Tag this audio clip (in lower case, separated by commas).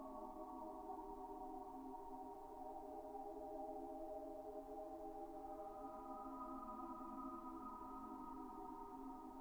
music